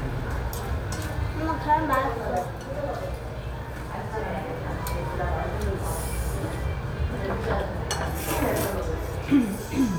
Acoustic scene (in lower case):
restaurant